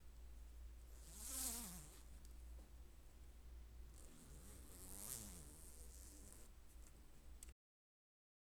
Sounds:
zipper (clothing)
home sounds

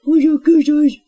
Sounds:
human voice
speech

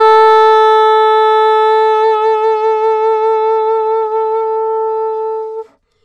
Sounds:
woodwind instrument
music
musical instrument

